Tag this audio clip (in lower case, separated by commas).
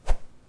swish